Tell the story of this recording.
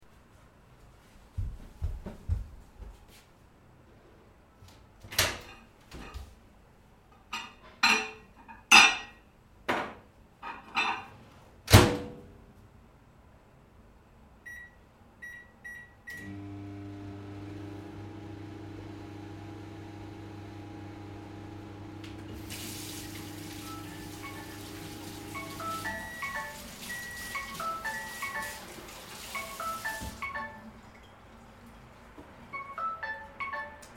I was cooking in the kitchen. I put a cold dish into the microwave, clicked on a few buttons on it, and set it to work for only ten seconds. Afterwards, I started washing my hands. As I was washing my hands, the microwave started beeping, and my phone started ringing at the same time.